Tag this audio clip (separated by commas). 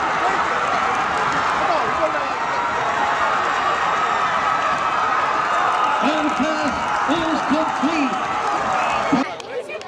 Speech